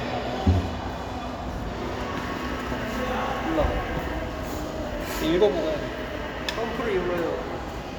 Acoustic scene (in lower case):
crowded indoor space